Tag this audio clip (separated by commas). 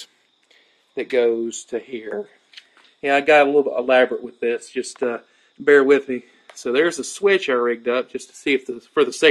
Narration, Speech